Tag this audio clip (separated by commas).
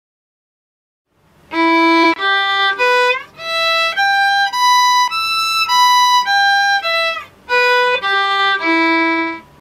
Violin, Musical instrument, Music